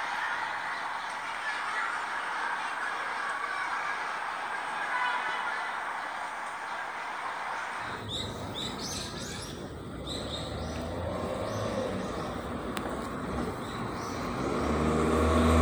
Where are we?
in a residential area